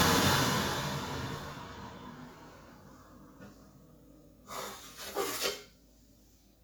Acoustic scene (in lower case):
kitchen